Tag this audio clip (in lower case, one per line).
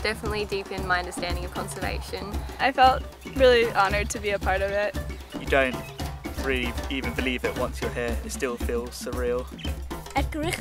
speech
music